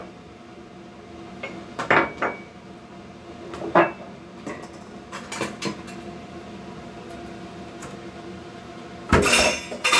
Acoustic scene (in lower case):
kitchen